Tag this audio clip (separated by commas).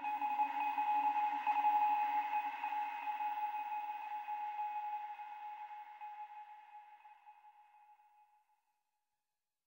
Sonar